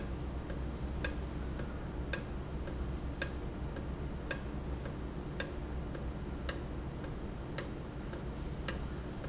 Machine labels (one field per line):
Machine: valve